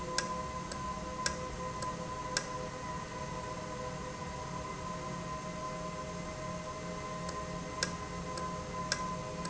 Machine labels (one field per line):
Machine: valve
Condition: normal